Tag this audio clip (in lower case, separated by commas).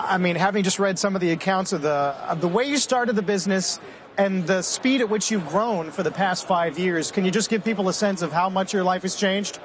speech